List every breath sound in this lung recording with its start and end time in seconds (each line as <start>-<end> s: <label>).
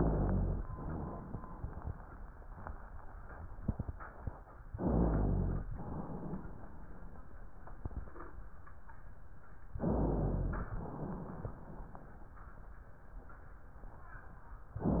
0.61-2.30 s: exhalation
0.61-2.30 s: crackles
4.73-5.64 s: inhalation
4.73-5.64 s: rhonchi
5.71-7.55 s: exhalation
9.79-10.70 s: inhalation
10.72-12.39 s: exhalation